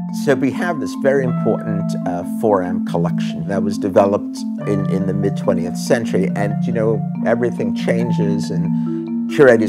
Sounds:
mallet percussion
glockenspiel
marimba

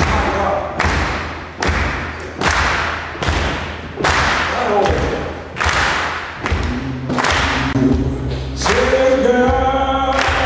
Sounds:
singing
speech

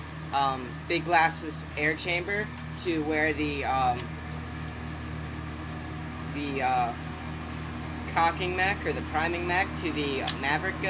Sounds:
speech

